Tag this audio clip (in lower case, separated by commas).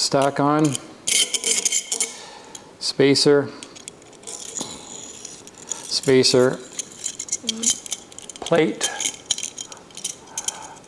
inside a small room, speech